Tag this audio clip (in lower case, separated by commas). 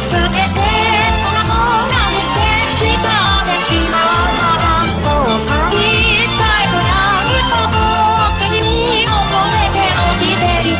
music of asia, music